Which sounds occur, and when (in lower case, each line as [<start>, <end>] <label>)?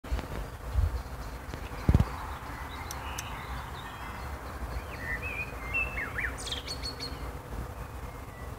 [0.00, 7.31] tweet
[0.00, 8.55] motor vehicle (road)
[1.81, 2.04] generic impact sounds
[2.87, 2.96] clicking
[3.13, 3.24] clicking
[3.81, 4.40] ding-dong
[7.61, 8.55] tweet